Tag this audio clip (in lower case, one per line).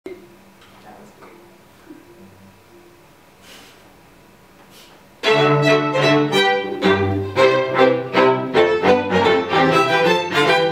fiddle
speech
classical music
musical instrument
bowed string instrument
music
cello